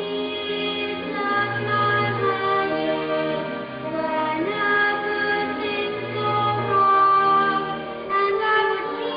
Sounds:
child singing
music

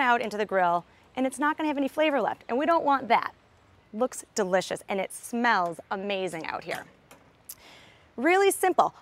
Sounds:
speech

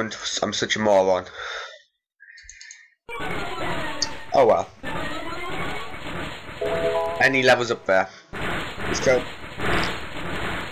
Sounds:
speech

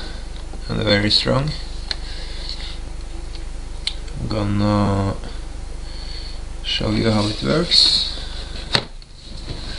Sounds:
speech

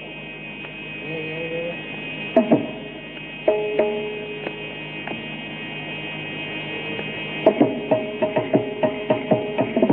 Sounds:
tabla
drum
percussion

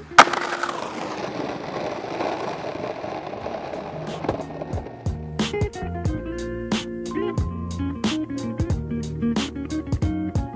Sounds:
music
skateboard

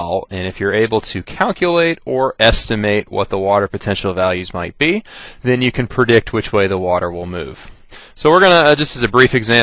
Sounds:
speech

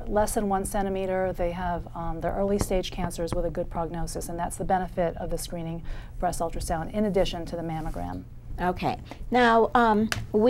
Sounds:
speech

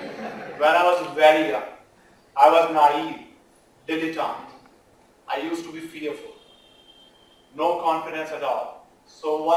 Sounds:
male speech
speech

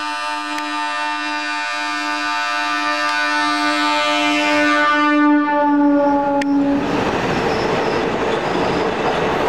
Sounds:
train wagon
rail transport
train
train horn

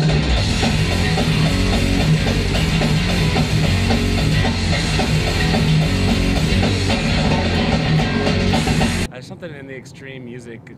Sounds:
music
speech

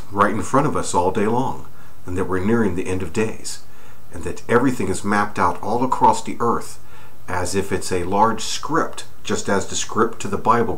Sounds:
speech

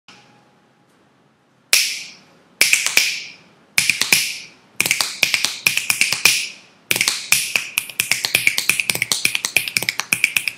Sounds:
people finger snapping

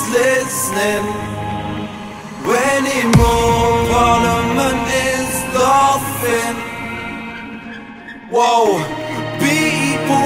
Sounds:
music

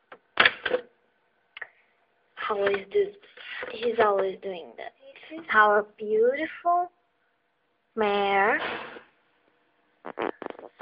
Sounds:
speech

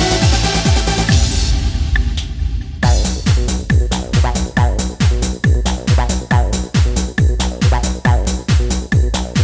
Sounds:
techno
trance music
music

